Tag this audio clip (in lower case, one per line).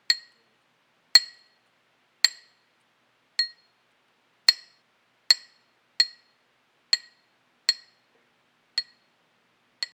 clink
glass